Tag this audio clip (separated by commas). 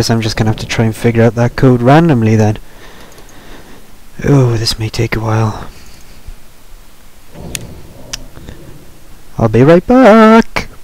Speech